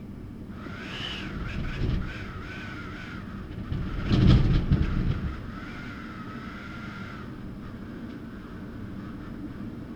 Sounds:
Wind

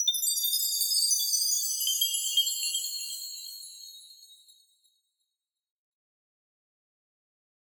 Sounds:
Chime, Bell

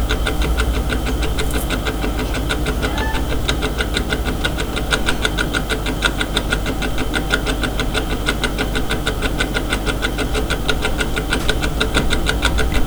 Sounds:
Tick-tock, Mechanisms, Clock

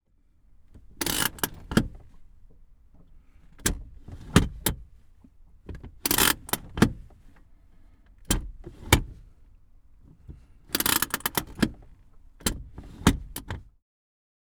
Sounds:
Vehicle, Motor vehicle (road)

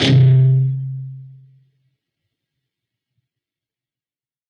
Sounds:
Musical instrument, Music, Plucked string instrument, Guitar

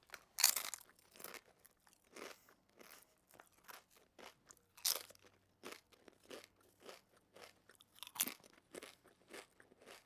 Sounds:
Chewing

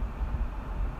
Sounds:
Wind

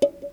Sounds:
Music, Percussion, Musical instrument

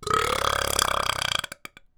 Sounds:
eructation

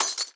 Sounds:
Shatter, Glass

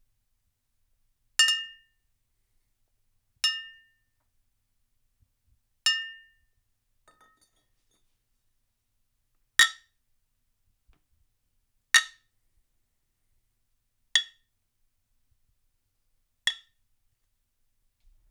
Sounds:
Glass, Chink

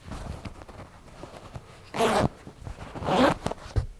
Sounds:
Zipper (clothing), home sounds

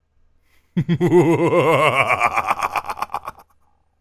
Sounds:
Human voice, Laughter

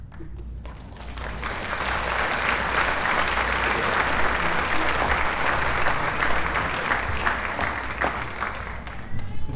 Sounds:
Applause, Crowd, Human group actions

